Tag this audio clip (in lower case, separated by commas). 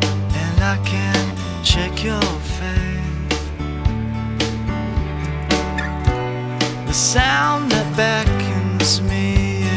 music